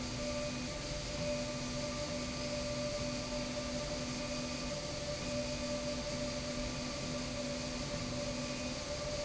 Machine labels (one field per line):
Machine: slide rail